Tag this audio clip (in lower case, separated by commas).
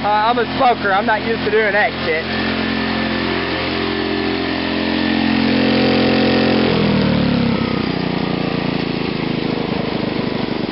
speech, engine, idling